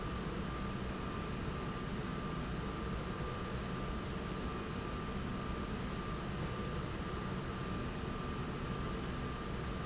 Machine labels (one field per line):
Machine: slide rail